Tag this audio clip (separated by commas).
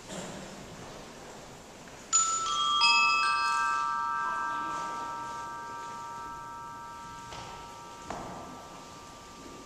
Percussion, Mallet percussion, Glockenspiel, xylophone